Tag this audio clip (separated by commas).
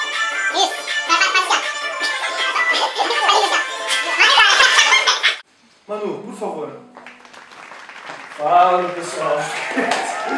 Music, Speech